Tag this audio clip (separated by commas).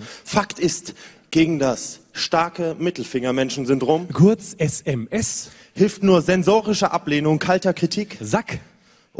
Speech